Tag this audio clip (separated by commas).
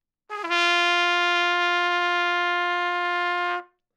Brass instrument, Trumpet, Music, Musical instrument